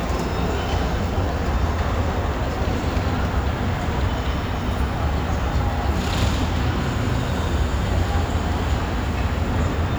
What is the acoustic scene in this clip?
subway station